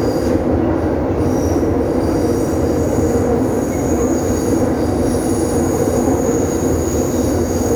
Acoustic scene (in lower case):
subway train